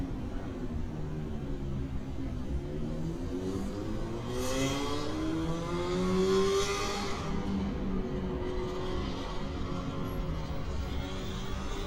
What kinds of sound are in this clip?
small-sounding engine